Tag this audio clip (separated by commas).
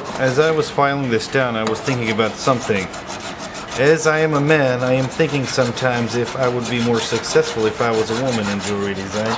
Rub, Filing (rasp)